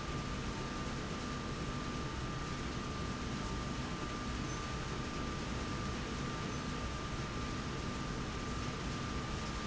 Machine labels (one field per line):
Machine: slide rail